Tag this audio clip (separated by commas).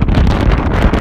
Wind